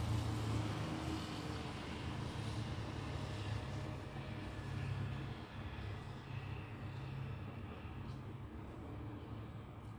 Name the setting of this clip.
residential area